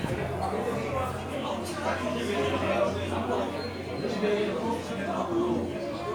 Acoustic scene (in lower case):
crowded indoor space